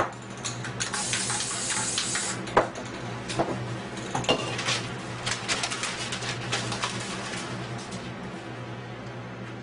A clicking sound, followed by a spraying sound